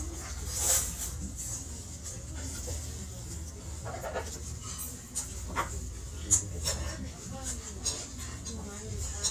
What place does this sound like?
restaurant